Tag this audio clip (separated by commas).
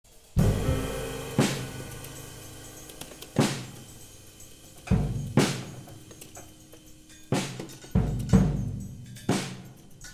Rimshot, Bass drum, Drum, Snare drum, Drum kit, Percussion